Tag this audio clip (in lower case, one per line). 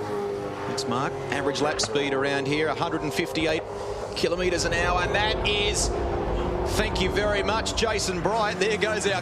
speech